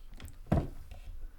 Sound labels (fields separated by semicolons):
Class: cupboard; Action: opening; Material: wooden